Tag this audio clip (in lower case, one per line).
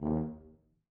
brass instrument
musical instrument
music